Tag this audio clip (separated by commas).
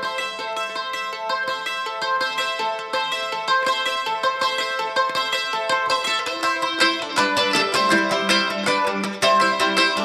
playing mandolin